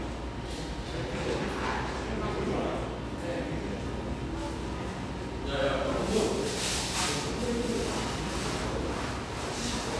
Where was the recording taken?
in a cafe